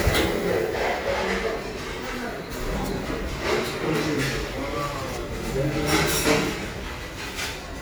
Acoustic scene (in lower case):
restaurant